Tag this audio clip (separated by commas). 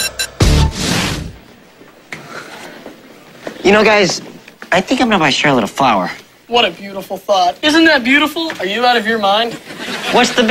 Speech, Music